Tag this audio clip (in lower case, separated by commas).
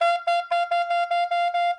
wind instrument, musical instrument, music